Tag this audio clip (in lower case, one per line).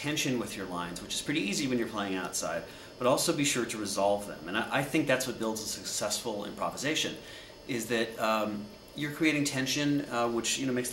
speech